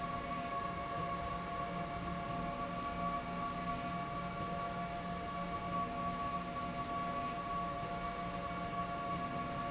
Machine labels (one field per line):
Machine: slide rail